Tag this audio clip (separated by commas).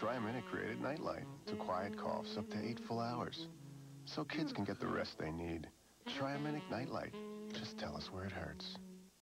Music, Speech